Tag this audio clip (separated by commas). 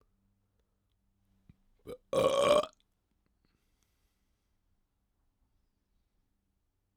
eructation